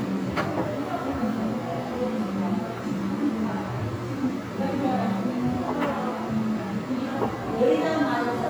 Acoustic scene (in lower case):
crowded indoor space